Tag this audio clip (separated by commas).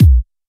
Music, Drum, Musical instrument, Percussion, Bass drum